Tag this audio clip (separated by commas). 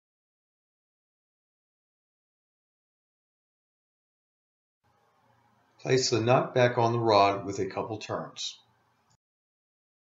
Speech